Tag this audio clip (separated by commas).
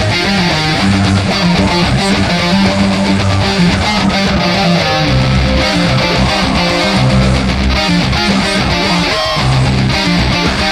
Musical instrument, Guitar, Plucked string instrument, Music